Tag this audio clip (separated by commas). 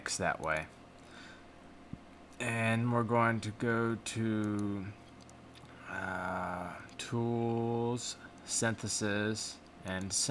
Speech